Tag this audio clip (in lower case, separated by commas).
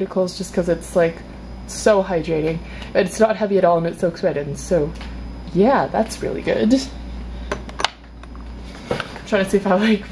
speech